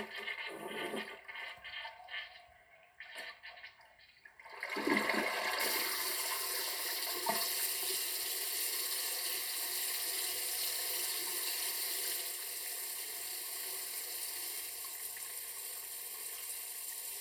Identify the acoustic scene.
restroom